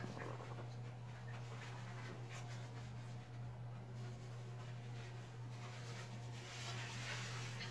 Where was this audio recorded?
in a restroom